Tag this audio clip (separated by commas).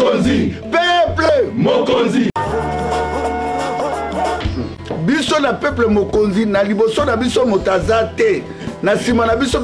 Music, Speech